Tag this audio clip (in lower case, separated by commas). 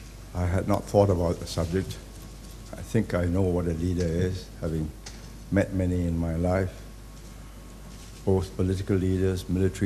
male speech, narration, speech